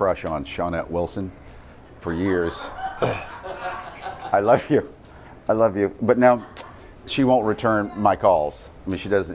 A man speaks to a group of people who laugh in amusement